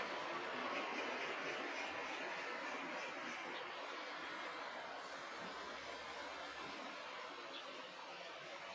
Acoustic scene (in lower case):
residential area